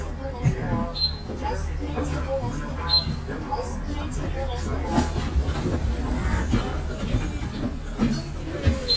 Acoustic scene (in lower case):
bus